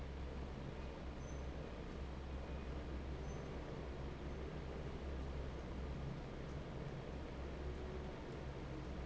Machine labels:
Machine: fan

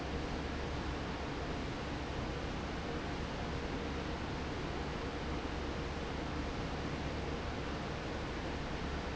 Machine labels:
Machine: fan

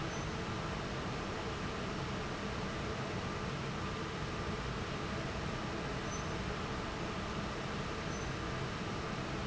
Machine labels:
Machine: fan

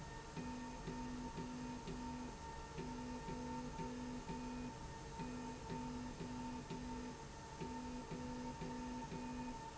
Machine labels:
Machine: slide rail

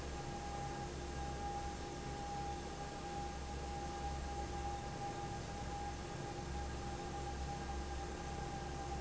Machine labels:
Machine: fan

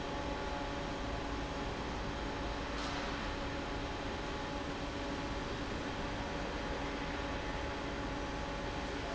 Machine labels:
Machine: fan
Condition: normal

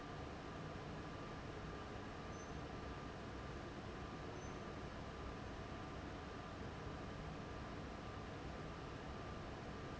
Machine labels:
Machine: fan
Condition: abnormal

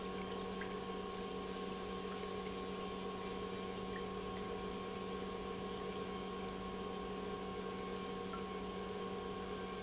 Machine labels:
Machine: pump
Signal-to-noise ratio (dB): 6 dB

